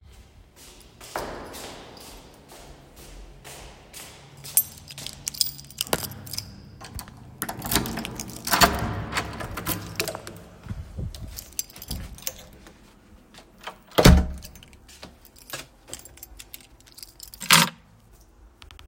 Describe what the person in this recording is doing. I am going down the hallway, taking keys, ompening the door, closing it, put the key